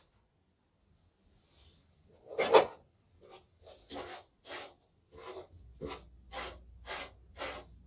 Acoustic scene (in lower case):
restroom